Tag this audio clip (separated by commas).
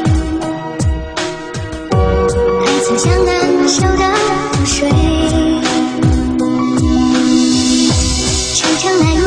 Music